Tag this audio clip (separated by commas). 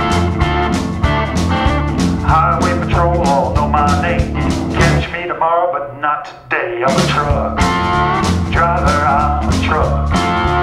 Music